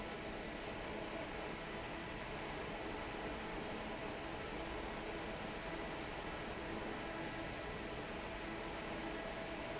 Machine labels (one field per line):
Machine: fan